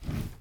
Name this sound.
wooden drawer opening